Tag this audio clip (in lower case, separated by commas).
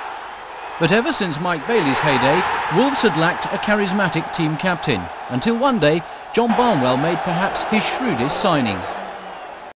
speech